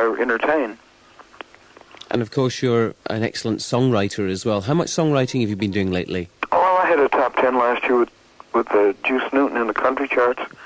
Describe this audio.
Two men speak, one over the telephone